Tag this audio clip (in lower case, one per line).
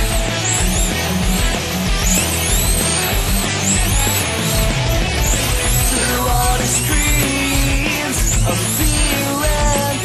music